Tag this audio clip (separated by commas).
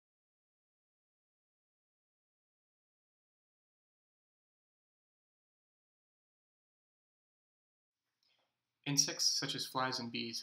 Speech